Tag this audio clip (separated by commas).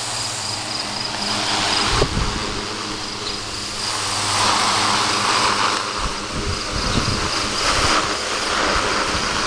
Mechanical fan